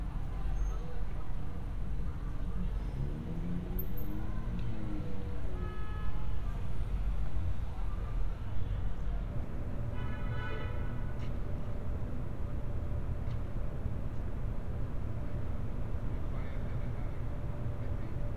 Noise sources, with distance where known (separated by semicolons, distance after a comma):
car horn